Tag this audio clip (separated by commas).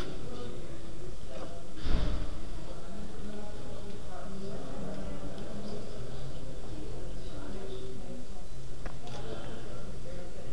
Speech